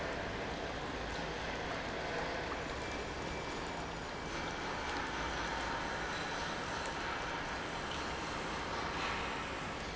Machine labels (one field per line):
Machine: pump